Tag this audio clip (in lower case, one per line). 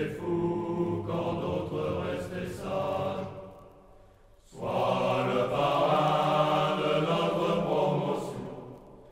mantra